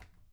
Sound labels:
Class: cupboard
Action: opening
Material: wooden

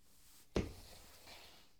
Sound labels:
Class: furniture moving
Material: wooden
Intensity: low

